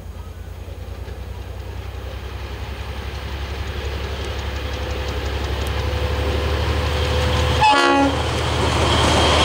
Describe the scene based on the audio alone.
A train speeds by and briefly blows its horn